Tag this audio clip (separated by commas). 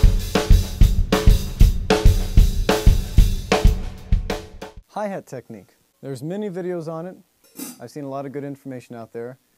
Hi-hat, Cymbal